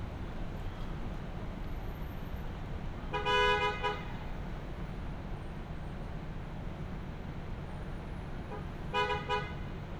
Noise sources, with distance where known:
car horn, near

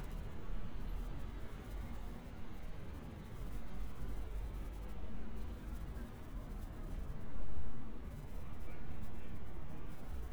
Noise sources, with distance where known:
background noise

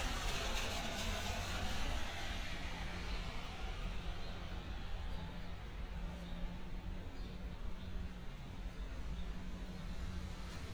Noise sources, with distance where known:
engine of unclear size, near

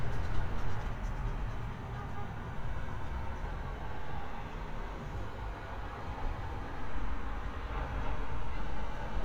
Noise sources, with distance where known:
car horn
music from a moving source

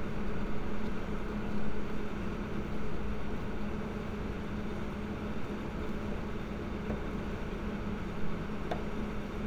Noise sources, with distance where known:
small-sounding engine, near

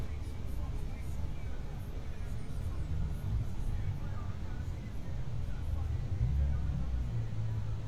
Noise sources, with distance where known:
music from a moving source

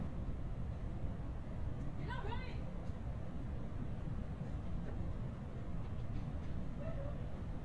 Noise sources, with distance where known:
unidentified human voice

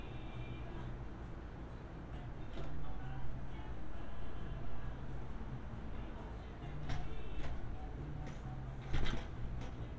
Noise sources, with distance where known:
music from a fixed source, far

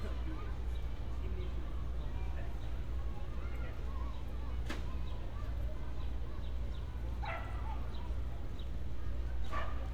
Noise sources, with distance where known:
dog barking or whining, far

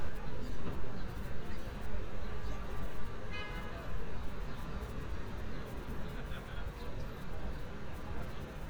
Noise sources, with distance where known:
car horn
person or small group talking, far

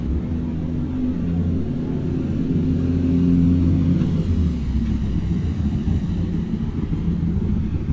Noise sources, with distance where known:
medium-sounding engine, near

